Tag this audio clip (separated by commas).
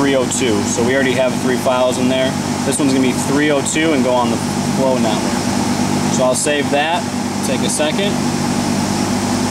Mechanical fan, Speech